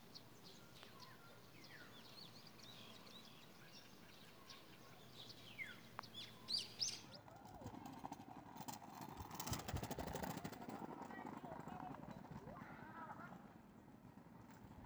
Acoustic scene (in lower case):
park